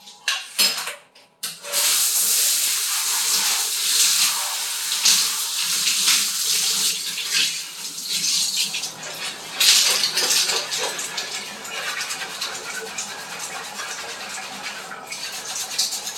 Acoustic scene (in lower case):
restroom